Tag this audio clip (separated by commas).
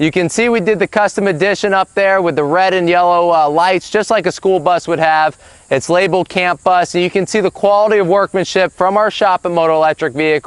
Speech